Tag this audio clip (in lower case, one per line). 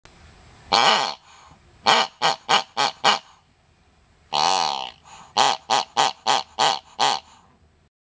oink